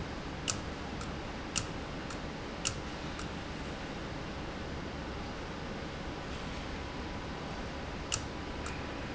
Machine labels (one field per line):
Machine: valve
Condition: abnormal